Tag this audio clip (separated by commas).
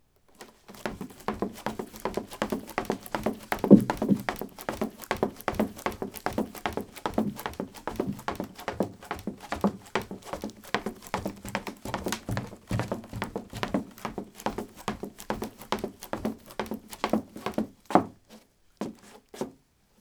Run